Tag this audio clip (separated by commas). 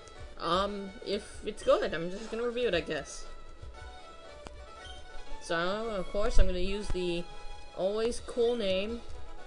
Speech, Music